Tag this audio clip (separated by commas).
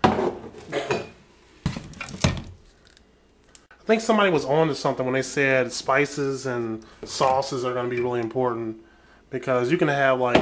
Speech